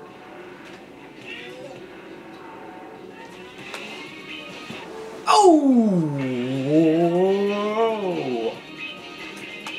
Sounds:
Television

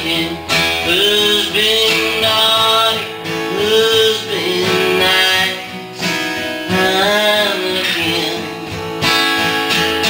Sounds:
Male singing, Music

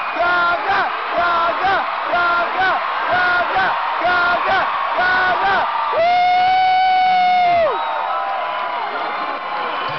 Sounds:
Speech

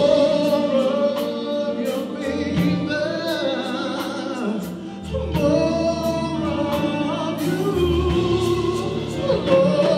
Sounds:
Singing, Music

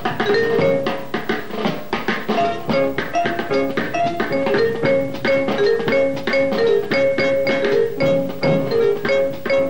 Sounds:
playing vibraphone

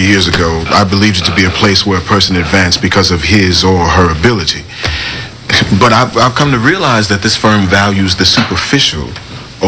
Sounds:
Speech, Male speech

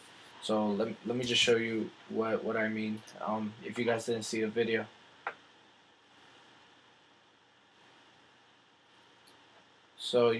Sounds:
Speech

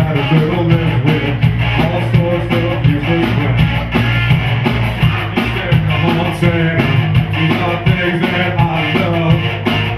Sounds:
Music

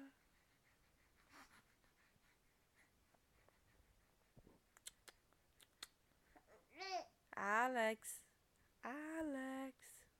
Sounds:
Babbling, Speech

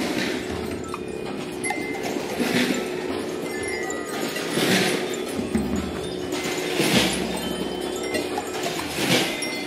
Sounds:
Percussion, Harmonic, Music

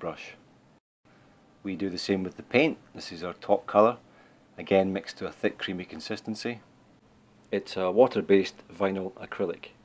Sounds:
Speech

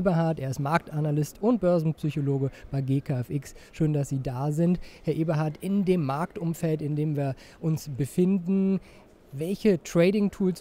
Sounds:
Speech

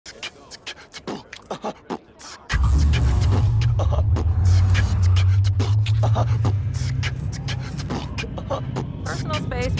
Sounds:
beat boxing

